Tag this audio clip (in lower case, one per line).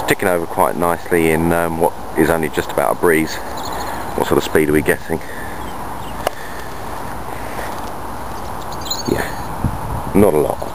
speech